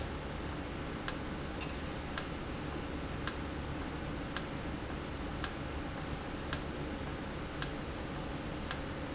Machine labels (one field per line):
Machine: valve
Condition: normal